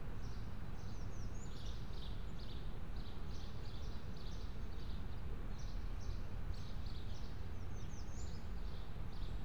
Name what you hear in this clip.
background noise